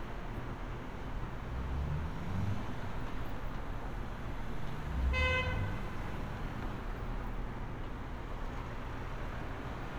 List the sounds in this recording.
car horn